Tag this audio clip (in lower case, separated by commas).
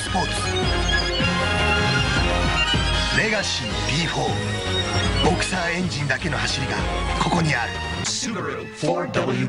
speech, music